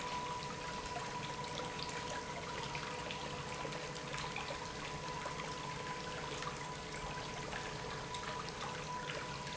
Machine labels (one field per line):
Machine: pump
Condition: normal